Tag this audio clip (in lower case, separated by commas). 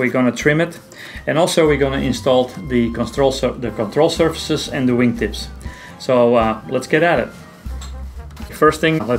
music, speech